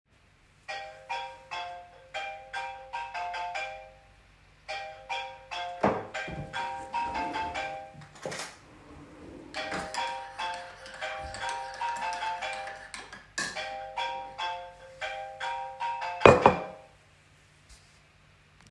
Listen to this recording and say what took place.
A phone started ringing in the room. While the phone was still ringing I opened a drawer took a spoon and start stirring my coffee with the spoon